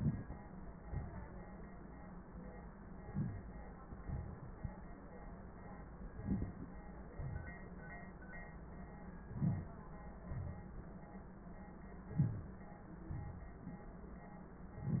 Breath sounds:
Inhalation: 3.02-3.57 s, 6.17-6.72 s, 9.18-9.81 s, 12.07-12.66 s
Exhalation: 3.87-4.69 s, 7.17-7.80 s, 10.30-11.04 s, 13.09-13.87 s
Crackles: 6.17-6.72 s

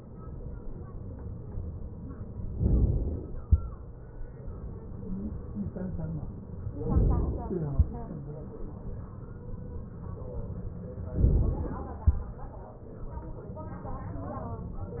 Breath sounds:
Inhalation: 2.59-3.40 s, 11.12-11.93 s

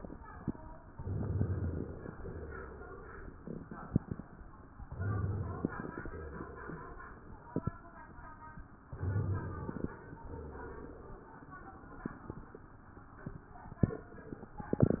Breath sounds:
Inhalation: 0.91-2.08 s, 4.82-6.06 s, 8.84-10.01 s
Exhalation: 2.08-3.32 s, 6.06-7.27 s, 10.01-11.34 s

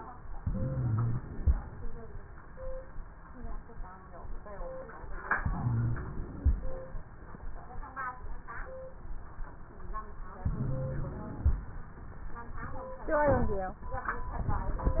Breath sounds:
Inhalation: 0.37-1.50 s, 5.40-6.54 s, 10.45-11.58 s
Wheeze: 0.37-1.50 s, 5.40-6.54 s, 10.45-11.58 s

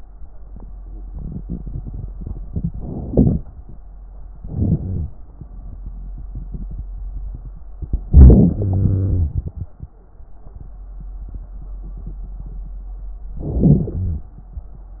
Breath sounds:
Inhalation: 2.80-3.38 s, 4.44-4.81 s, 8.12-8.55 s, 13.41-13.93 s
Exhalation: 4.78-5.15 s, 8.57-9.54 s, 13.96-14.28 s
Wheeze: 4.78-5.15 s, 8.57-9.54 s, 13.96-14.28 s

